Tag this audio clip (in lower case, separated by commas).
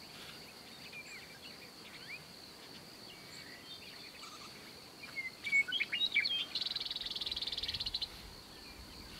tweet, tweeting, animal